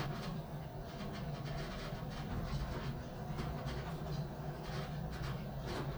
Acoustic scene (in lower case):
elevator